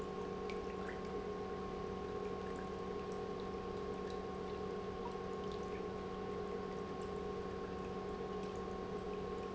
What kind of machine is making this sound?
pump